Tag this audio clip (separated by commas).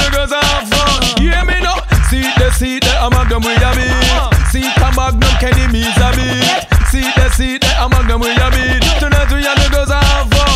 Music